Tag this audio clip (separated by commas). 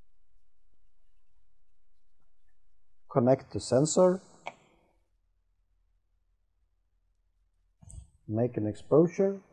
Speech, inside a small room